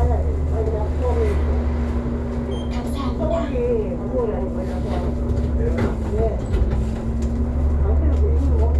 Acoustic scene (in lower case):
bus